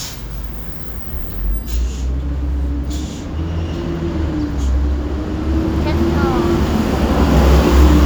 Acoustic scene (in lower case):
street